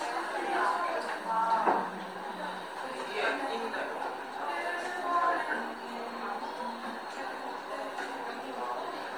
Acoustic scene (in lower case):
cafe